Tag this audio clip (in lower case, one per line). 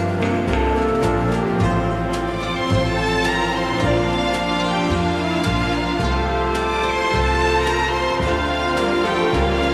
orchestra
music